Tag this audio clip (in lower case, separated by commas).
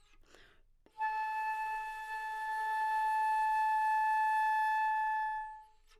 woodwind instrument, musical instrument, music